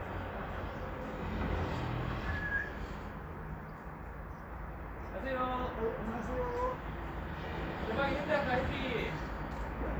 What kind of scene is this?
residential area